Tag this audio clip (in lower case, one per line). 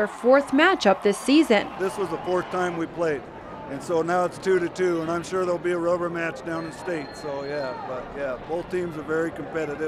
speech